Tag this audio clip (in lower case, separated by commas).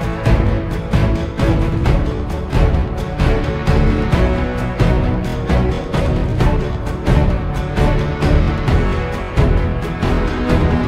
theme music